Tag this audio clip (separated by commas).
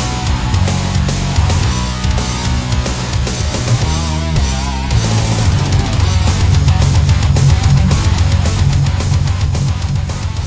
Music, Musical instrument